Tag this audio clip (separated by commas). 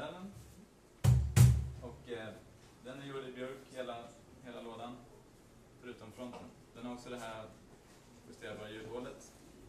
Speech